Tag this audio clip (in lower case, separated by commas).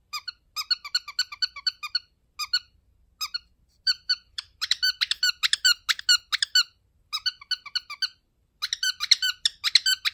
bird squawking